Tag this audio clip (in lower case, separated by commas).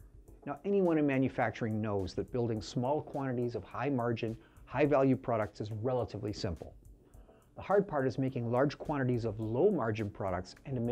speech